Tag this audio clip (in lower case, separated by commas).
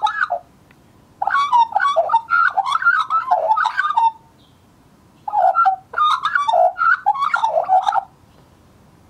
magpie calling